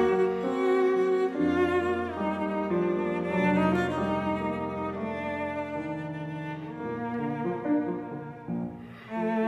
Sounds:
cello
musical instrument
music

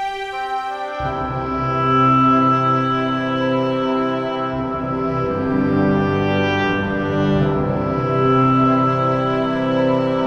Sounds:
music

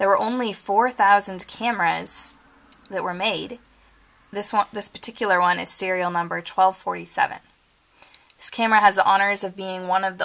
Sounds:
speech

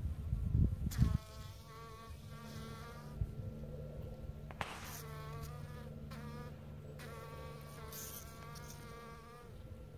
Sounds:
bee

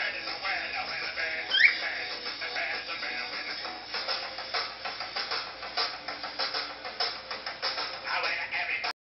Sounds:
music
animal
bird

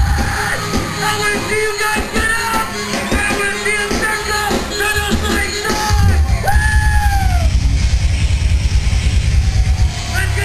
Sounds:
speech
music

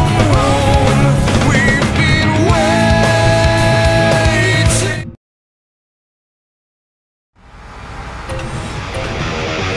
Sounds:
music

